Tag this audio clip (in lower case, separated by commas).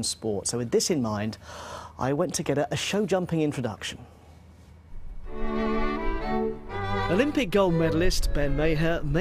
music, speech